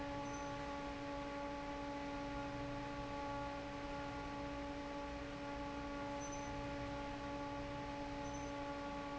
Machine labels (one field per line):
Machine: fan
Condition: normal